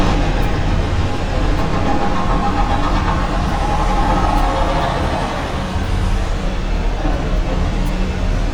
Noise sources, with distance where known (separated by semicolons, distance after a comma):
unidentified impact machinery, near